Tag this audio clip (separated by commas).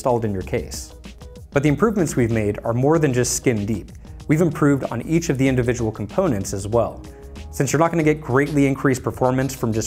Music, Speech